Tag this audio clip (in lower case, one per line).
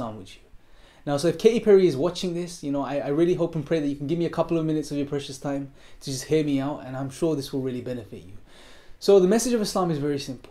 speech